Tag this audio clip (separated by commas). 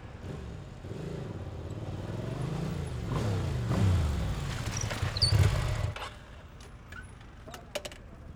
Motorcycle, Motor vehicle (road), Vehicle